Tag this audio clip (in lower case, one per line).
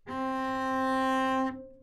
bowed string instrument
music
musical instrument